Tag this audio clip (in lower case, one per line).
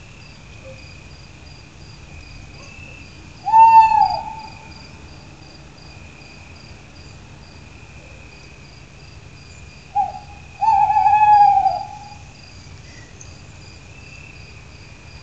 bird
wild animals
animal